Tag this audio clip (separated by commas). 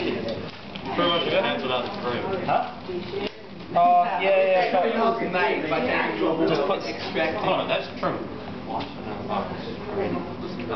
Speech